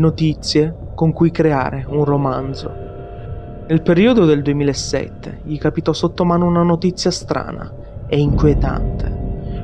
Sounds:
Speech, Music

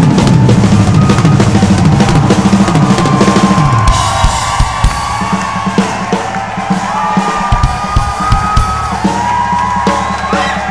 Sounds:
Drum kit, Drum, Musical instrument, Music

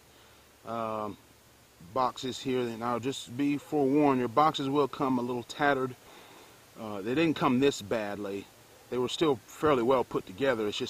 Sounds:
Speech

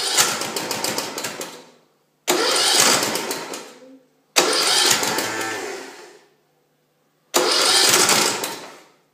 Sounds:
Engine knocking

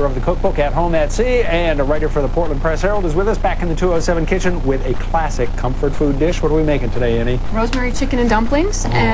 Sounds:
Speech

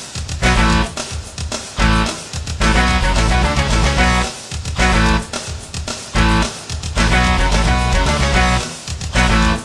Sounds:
Musical instrument, Acoustic guitar, Guitar, Electric guitar, Music, Plucked string instrument

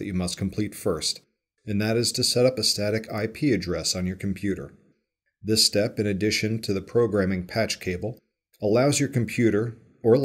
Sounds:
Speech

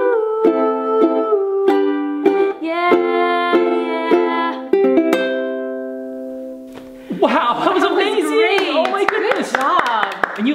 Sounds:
playing ukulele

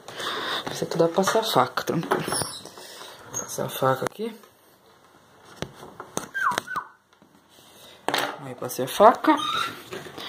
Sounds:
Speech

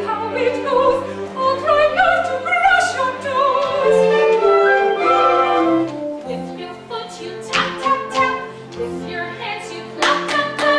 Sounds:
inside a large room or hall, Music

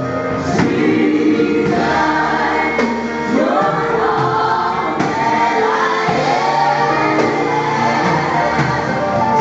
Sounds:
Gospel music, Music

